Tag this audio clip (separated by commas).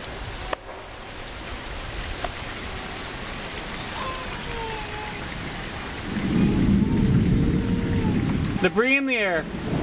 Rain on surface, Thunderstorm, Rain